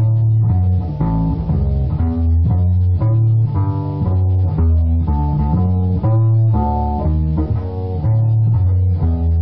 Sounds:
Double bass, Guitar, Music, Musical instrument, inside a small room, playing double bass, Plucked string instrument

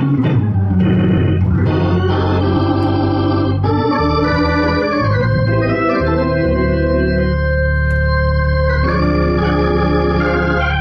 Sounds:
playing electronic organ, Organ, Electronic organ

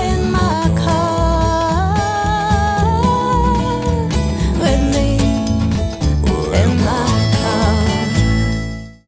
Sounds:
Music

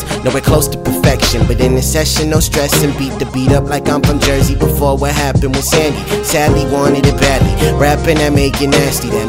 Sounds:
Rhythm and blues, Music

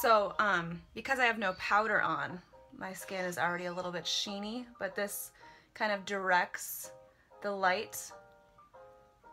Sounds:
Speech, inside a small room

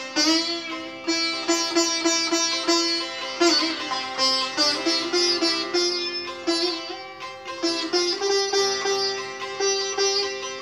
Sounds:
playing sitar

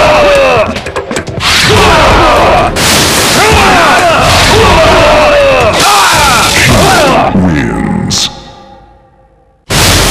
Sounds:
Speech, Music

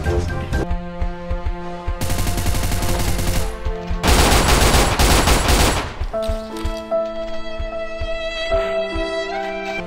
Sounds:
Music

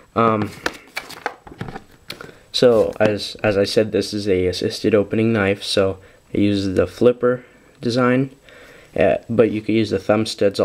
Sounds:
Speech

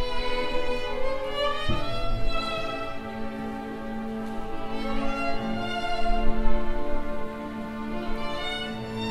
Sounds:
Musical instrument, fiddle, Music

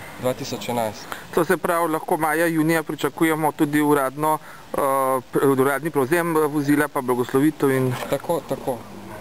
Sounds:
Speech, Vehicle, Truck

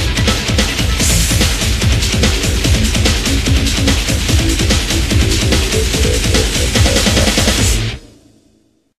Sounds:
Music, Pop music

